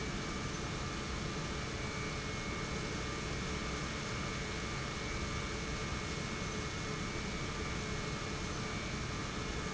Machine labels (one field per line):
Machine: pump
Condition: normal